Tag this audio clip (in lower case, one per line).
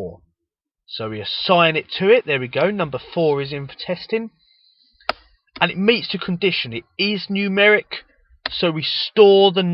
narration
speech